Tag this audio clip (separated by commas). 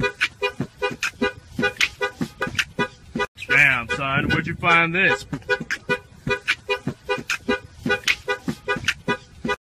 Speech